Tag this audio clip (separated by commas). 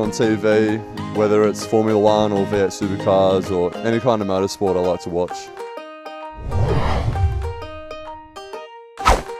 Music, Speech, man speaking